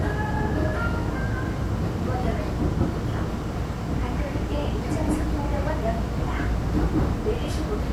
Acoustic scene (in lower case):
subway train